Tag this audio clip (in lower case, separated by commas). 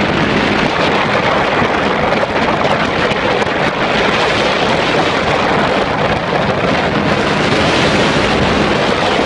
boat, vehicle